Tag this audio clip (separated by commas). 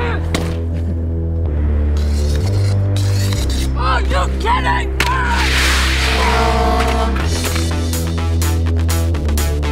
Music, Speech